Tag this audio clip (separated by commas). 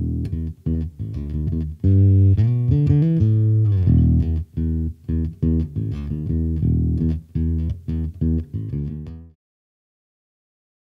playing tuning fork